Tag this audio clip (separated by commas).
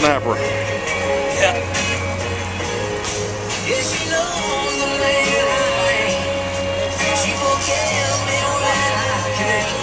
Speech, Music